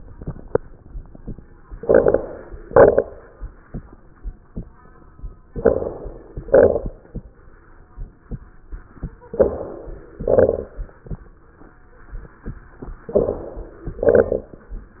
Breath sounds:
1.71-2.63 s: inhalation
1.71-2.63 s: crackles
2.65-3.58 s: exhalation
2.65-3.58 s: crackles
5.49-6.41 s: inhalation
5.49-6.41 s: crackles
6.43-7.36 s: exhalation
6.43-7.36 s: crackles
9.29-10.21 s: inhalation
9.29-10.21 s: crackles
10.25-11.18 s: exhalation
10.25-11.18 s: crackles
13.05-13.97 s: inhalation
13.05-13.97 s: crackles
13.99-14.92 s: exhalation
13.99-14.92 s: crackles

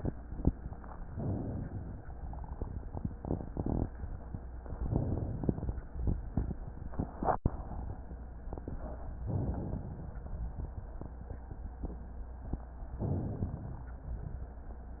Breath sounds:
1.06-1.99 s: inhalation
4.74-5.67 s: inhalation
9.28-10.21 s: inhalation
12.94-13.87 s: inhalation

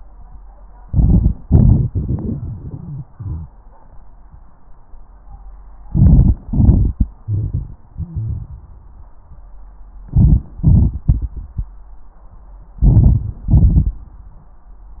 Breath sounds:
0.77-1.41 s: inhalation
0.77-1.41 s: crackles
1.43-3.51 s: exhalation
1.43-3.51 s: crackles
5.86-6.46 s: inhalation
5.86-6.46 s: crackles
6.49-9.07 s: exhalation
6.49-9.07 s: crackles
10.06-10.60 s: inhalation
10.06-10.60 s: crackles
10.63-11.71 s: exhalation
10.63-11.71 s: crackles
12.76-13.44 s: inhalation
12.76-13.44 s: crackles
13.47-14.15 s: exhalation
13.47-14.15 s: crackles

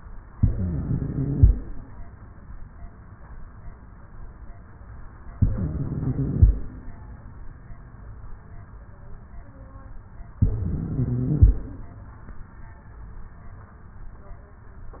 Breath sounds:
0.32-1.52 s: inhalation
0.34-1.54 s: wheeze
5.34-6.53 s: inhalation
5.36-6.55 s: wheeze
10.43-11.63 s: inhalation
10.43-11.63 s: wheeze

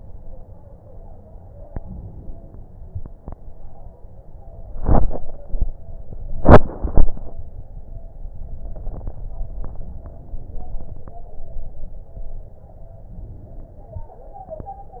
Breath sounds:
1.65-2.52 s: inhalation
13.22-14.12 s: inhalation

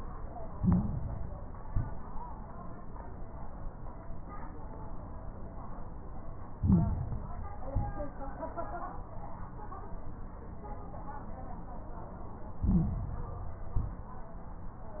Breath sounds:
0.51-1.55 s: inhalation
0.51-1.55 s: crackles
1.56-2.03 s: exhalation
1.56-2.03 s: crackles
6.52-7.56 s: inhalation
6.52-7.56 s: crackles
7.70-8.17 s: exhalation
7.70-8.17 s: crackles
12.56-13.60 s: inhalation
12.56-13.60 s: crackles
13.72-14.19 s: exhalation
13.72-14.19 s: crackles

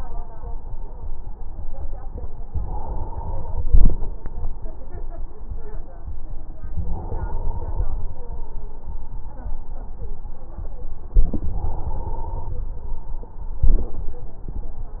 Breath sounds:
2.53-4.03 s: inhalation
6.72-8.03 s: inhalation
11.16-12.60 s: inhalation

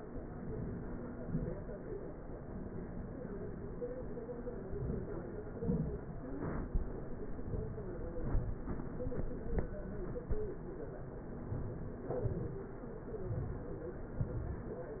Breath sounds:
0.00-0.81 s: inhalation
1.22-1.69 s: exhalation
4.68-5.30 s: inhalation
5.58-6.10 s: exhalation
11.54-12.02 s: inhalation
12.34-12.82 s: exhalation

